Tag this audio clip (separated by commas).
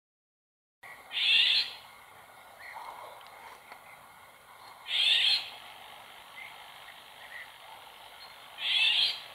wood thrush calling